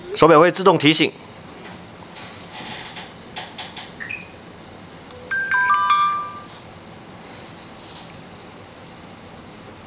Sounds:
Speech

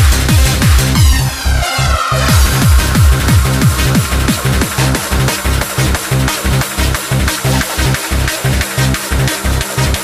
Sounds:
Music, Techno, Electronic music

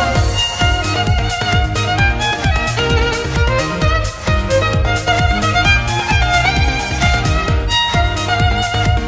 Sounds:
Music, Violin, Musical instrument

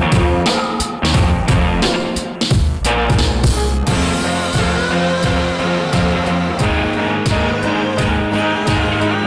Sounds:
Music

